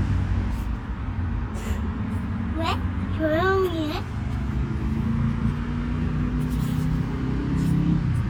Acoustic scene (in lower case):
residential area